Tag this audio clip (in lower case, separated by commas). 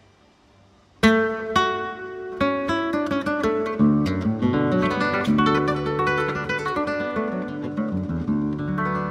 acoustic guitar, guitar, music, plucked string instrument, strum, musical instrument